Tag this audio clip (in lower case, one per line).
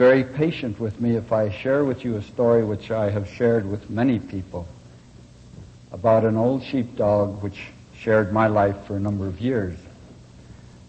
speech